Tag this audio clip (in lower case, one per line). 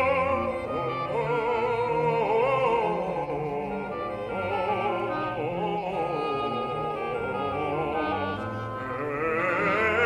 clarinet